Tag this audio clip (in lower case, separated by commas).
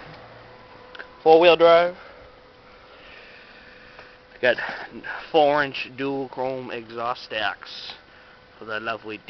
speech